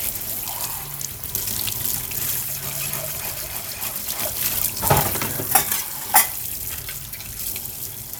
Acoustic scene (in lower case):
kitchen